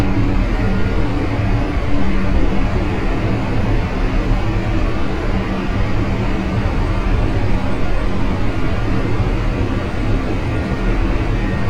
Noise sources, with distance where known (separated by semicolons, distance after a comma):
engine of unclear size